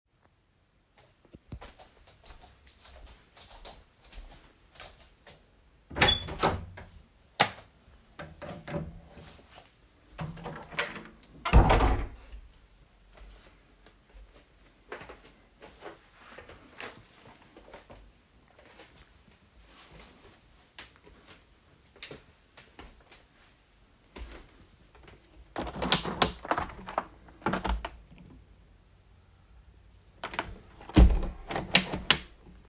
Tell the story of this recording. I stood up from my bed and went to the door. After opening it, I switched off the light and closed the door again. Then I passed the hallway and went to the living room. When I was there, I opened the window and closed it again right afterwards.